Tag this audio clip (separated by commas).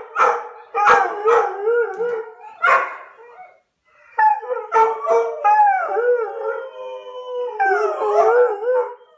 dog howling